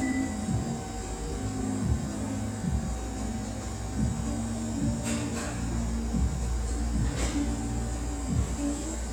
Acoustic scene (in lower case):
cafe